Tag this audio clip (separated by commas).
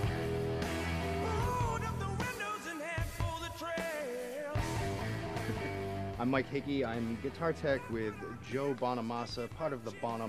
Strum, Musical instrument, Music, Electric guitar, Plucked string instrument, Speech, Guitar